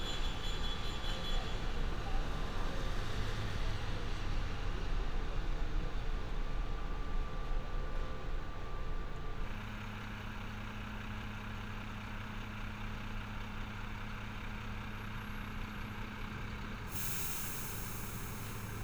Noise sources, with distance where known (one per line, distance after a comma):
engine of unclear size